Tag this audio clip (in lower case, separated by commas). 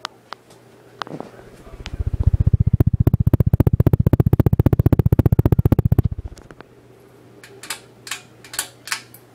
mechanical fan